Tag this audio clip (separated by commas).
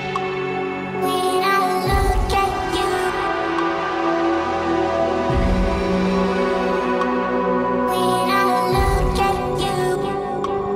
Electronic music, Music